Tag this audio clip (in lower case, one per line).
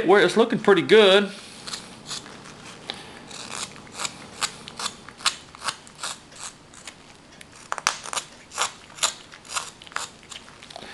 speech